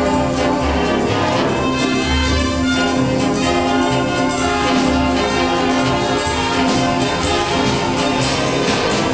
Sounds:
Music, Orchestra, Classical music

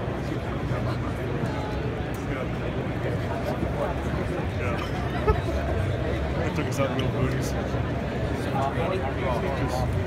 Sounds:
Speech

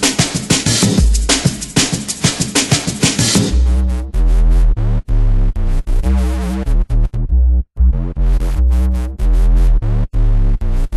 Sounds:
Music

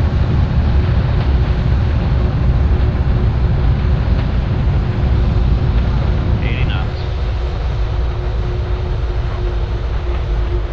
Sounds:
Vehicle, Speech, outside, urban or man-made

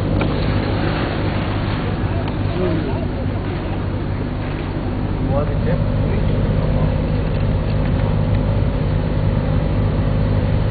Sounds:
Vehicle, Speech, Car, outside, rural or natural

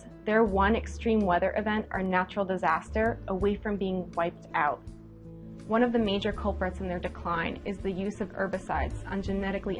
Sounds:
Music, Speech

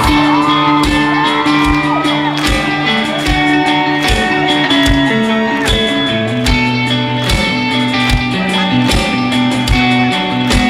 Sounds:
Music

